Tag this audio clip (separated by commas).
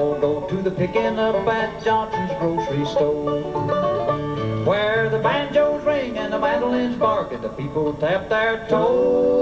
Music, Musical instrument